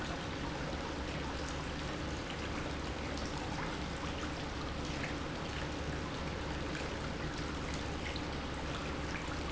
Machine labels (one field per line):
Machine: pump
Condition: normal